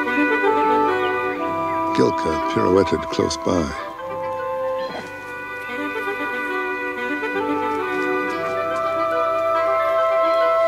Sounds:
woodwind instrument

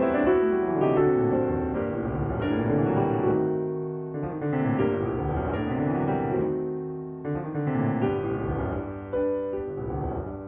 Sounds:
Music

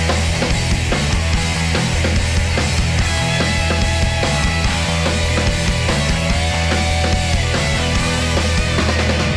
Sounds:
Music

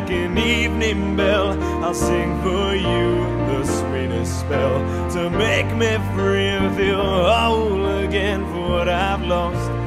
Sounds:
Music

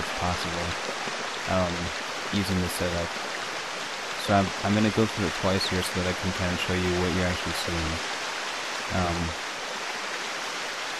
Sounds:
Speech

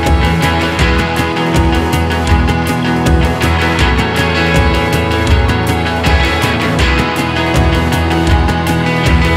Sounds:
Music

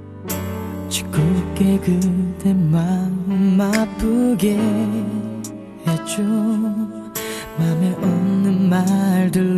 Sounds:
Music

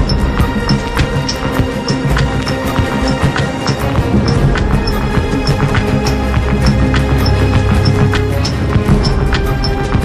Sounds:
Music

